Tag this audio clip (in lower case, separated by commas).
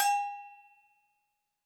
bell